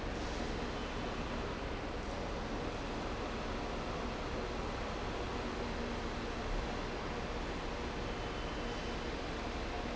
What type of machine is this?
fan